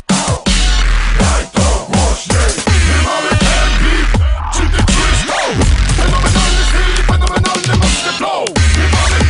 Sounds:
Dubstep, Music

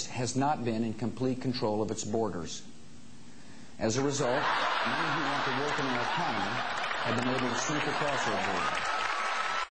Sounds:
Male speech, Speech, Narration

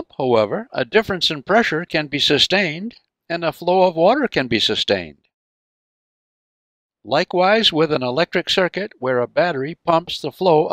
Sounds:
Speech

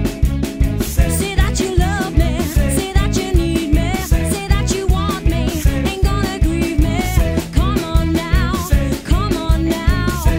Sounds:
Music

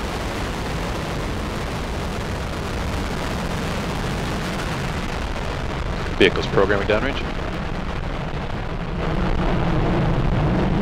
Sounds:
Eruption, Speech

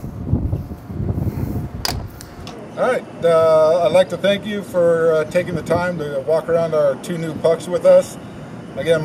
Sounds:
Speech

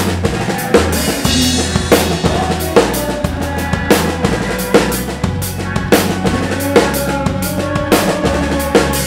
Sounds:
Drum roll, Drum, Rimshot, Drum kit, Bass drum, Snare drum, Percussion

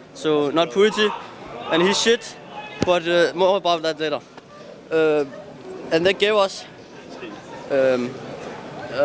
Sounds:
Speech

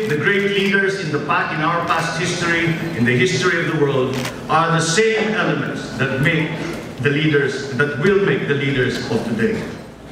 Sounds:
man speaking, Narration, Speech

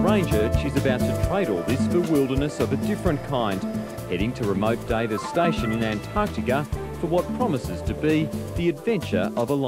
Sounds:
Speech, Music

